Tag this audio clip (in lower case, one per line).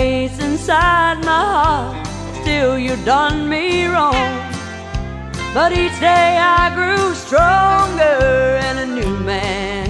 music